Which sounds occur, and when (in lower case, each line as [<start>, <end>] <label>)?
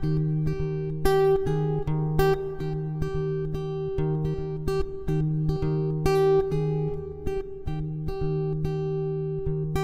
[0.00, 9.83] music